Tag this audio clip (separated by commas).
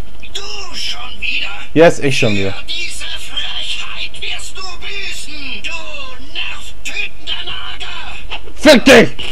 Speech